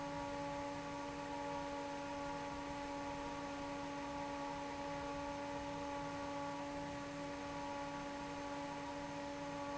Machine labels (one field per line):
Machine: fan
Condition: normal